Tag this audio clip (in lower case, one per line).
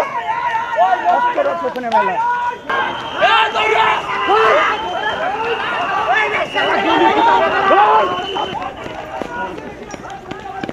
police radio chatter